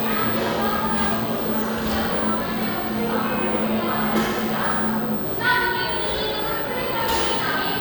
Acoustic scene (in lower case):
cafe